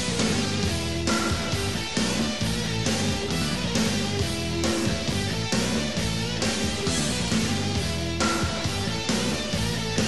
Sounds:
Music, Speech

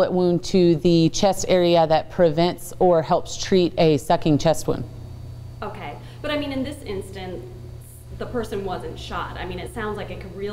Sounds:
Speech

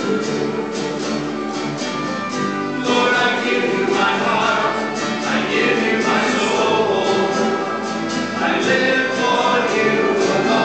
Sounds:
Strum, Music, Plucked string instrument, Musical instrument, Guitar, Acoustic guitar

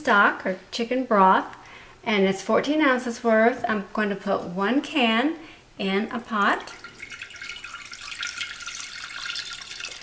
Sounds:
Speech, inside a small room

